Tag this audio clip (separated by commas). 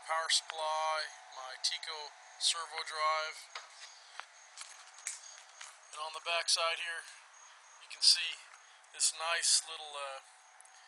Speech